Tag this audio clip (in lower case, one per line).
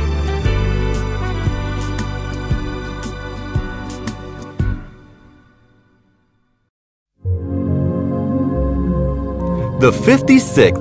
speech
new-age music
music